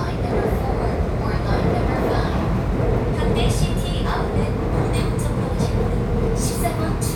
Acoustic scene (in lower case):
subway train